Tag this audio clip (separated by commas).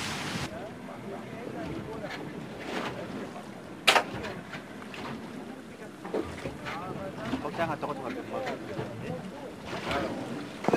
Speech